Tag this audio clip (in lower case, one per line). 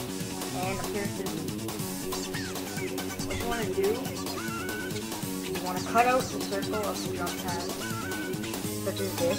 speech
music